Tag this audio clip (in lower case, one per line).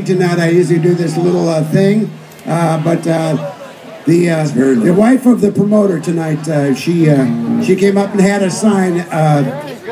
speech